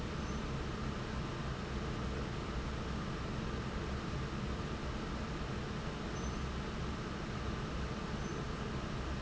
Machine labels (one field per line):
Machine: fan